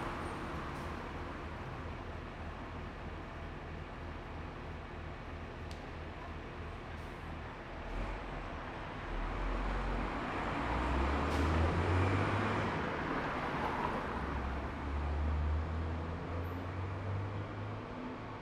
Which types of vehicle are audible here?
motorcycle, car, bus